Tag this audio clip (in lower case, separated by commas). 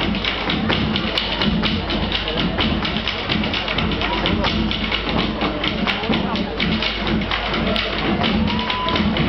music, traditional music